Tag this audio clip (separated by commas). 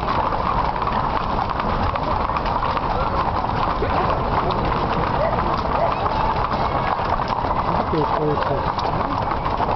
Speech, horse clip-clop, Clip-clop